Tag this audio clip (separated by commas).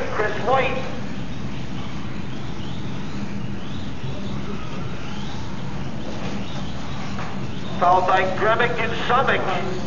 inside a large room or hall, Speech